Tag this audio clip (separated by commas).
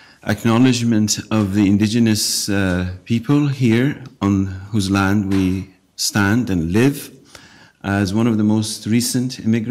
Narration, Speech, man speaking